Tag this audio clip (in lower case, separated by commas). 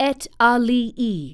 speech, female speech, human voice